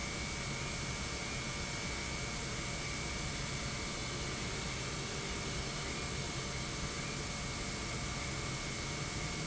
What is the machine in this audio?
pump